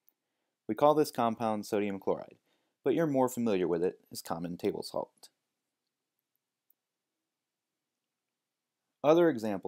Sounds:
Speech

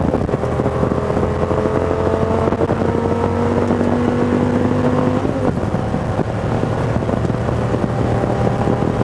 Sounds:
Car, auto racing, Vehicle

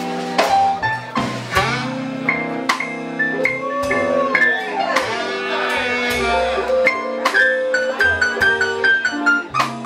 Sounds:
Speech, Music

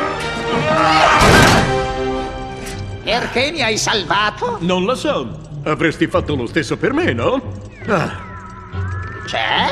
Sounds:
Speech

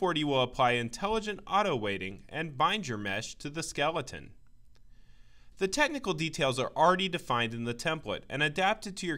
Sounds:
Speech

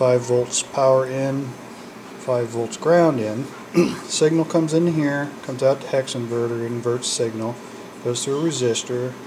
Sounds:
Speech, inside a small room

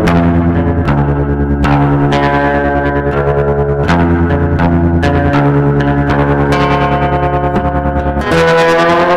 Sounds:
Blues, Music

